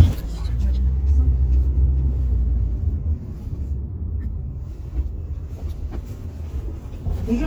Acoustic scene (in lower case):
car